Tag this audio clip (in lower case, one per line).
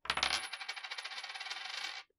coin (dropping)
domestic sounds